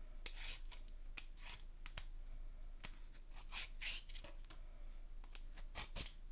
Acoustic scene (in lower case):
kitchen